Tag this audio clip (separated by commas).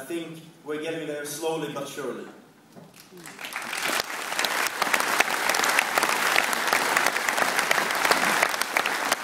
Applause